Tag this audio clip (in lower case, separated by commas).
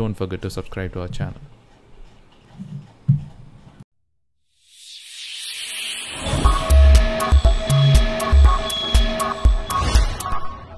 speech, music